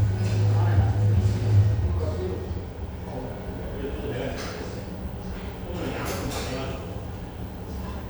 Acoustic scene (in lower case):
cafe